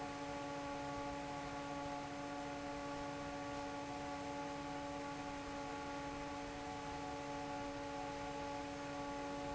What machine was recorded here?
fan